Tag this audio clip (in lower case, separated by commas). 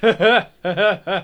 human voice, laughter